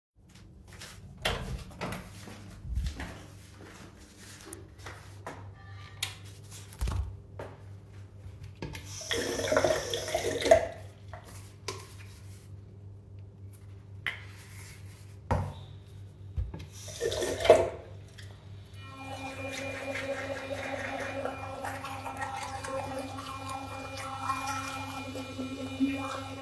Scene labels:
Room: bathroom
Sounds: footsteps, door, light switch, running water

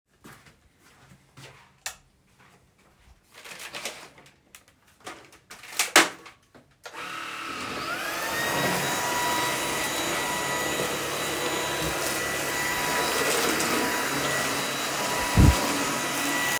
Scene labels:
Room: living room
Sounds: footsteps, light switch, vacuum cleaner

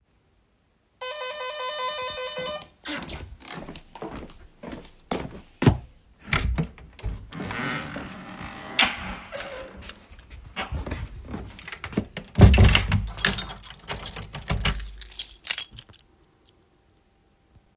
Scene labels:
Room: hallway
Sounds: bell ringing, footsteps, door, keys

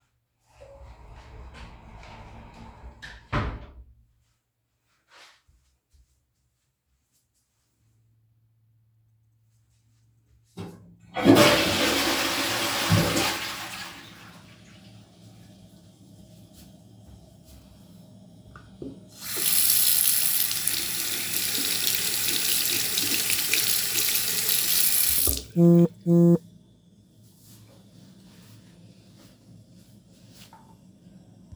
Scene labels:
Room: bathroom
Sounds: door, toilet flushing, running water, phone ringing

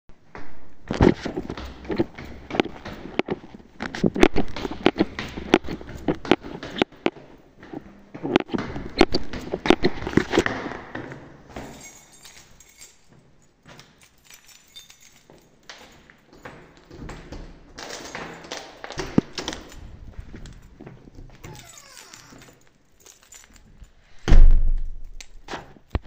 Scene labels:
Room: living room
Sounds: footsteps, keys, door (more than once)

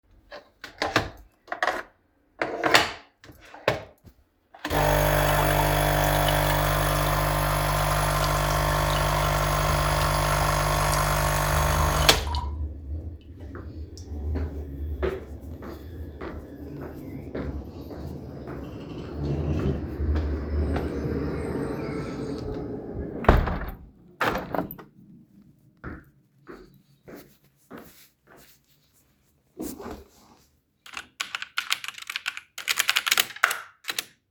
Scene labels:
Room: kitchen, living room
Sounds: coffee machine, footsteps, window, keyboard typing

